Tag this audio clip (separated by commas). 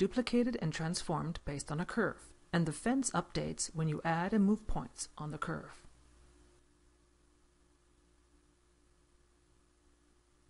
Speech, monologue